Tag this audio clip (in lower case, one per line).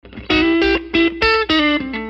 plucked string instrument
musical instrument
guitar
music